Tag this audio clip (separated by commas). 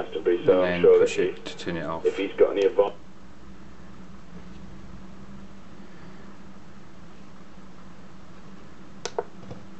Speech